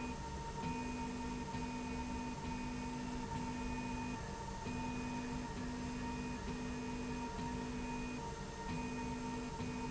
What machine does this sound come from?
slide rail